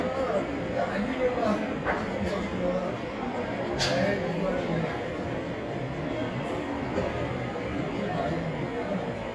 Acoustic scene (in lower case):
cafe